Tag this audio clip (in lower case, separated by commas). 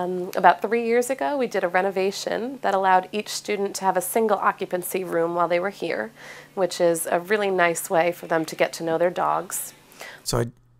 monologue, speech